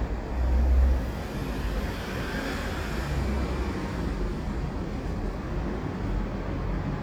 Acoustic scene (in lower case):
street